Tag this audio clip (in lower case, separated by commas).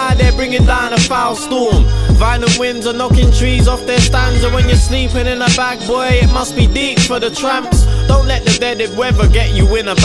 music